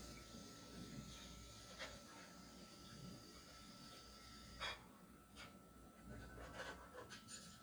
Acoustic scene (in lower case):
kitchen